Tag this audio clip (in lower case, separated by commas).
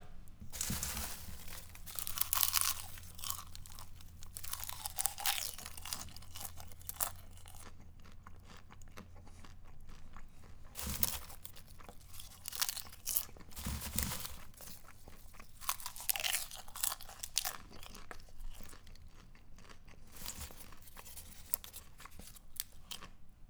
chewing